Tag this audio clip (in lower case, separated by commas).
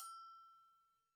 bell